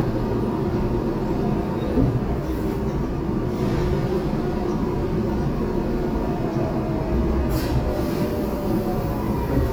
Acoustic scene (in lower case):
subway train